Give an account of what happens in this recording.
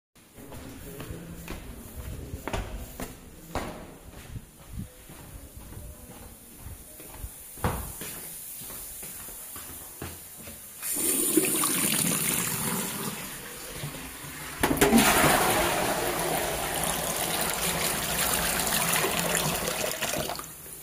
I walked up the stairs and entered the bathroom. Water was running from the shower and sink while I moved around the room. I flushed the toilet and then washed my hands while the water was still running.